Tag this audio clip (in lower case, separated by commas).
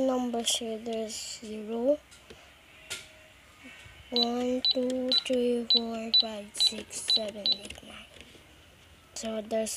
cash register, speech